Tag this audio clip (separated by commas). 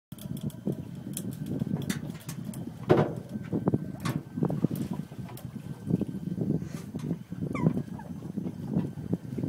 outside, rural or natural, Animal, Boat